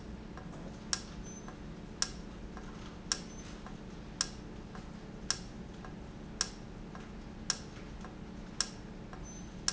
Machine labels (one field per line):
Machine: valve